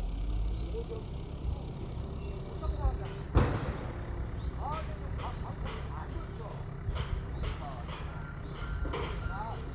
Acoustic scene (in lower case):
residential area